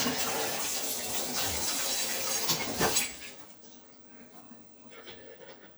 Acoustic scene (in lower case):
kitchen